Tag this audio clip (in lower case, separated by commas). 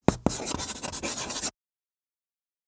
writing, domestic sounds